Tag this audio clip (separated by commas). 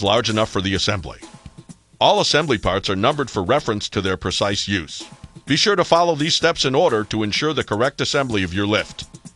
Speech, Music